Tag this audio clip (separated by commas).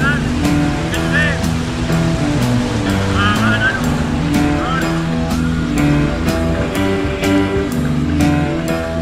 Speech, Music, outside, rural or natural